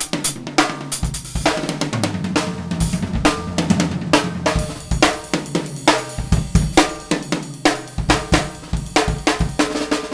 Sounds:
drum kit, drum, music, musical instrument

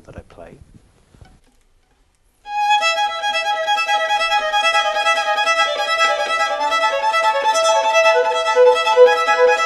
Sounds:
music, fiddle, speech, musical instrument

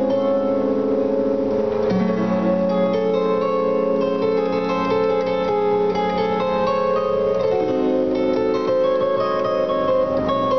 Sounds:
playing zither

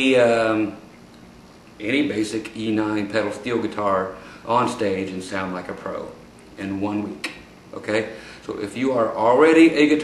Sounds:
speech

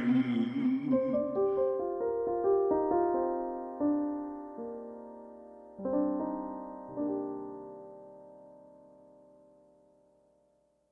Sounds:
electric piano, music

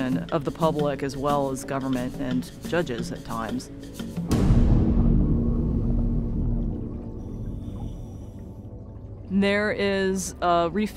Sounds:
speech, music

